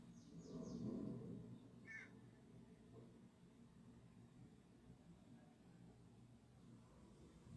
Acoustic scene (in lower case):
park